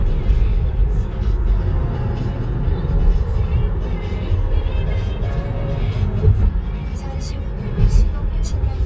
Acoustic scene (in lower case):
car